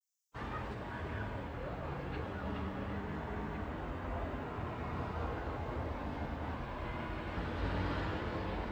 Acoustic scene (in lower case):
residential area